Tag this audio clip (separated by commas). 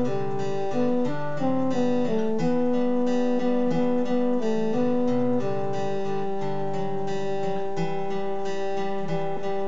Acoustic guitar, Plucked string instrument, Music, playing acoustic guitar, Musical instrument, Guitar